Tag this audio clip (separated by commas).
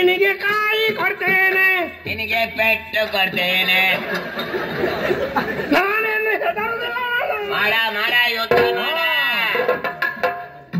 Music, Speech